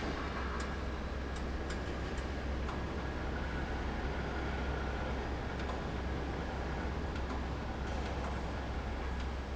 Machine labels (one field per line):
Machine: fan